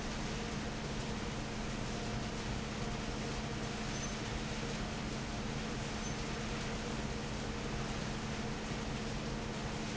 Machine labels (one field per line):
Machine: fan